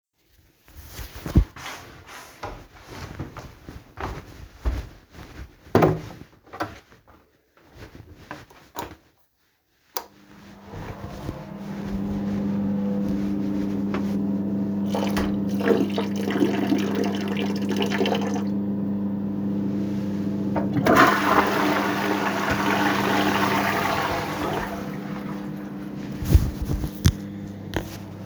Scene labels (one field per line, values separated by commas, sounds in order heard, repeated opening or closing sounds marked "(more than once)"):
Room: bathroom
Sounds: footsteps, door, light switch, toilet flushing